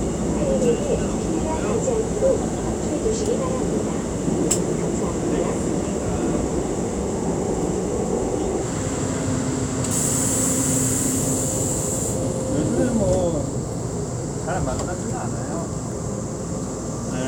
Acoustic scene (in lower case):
subway train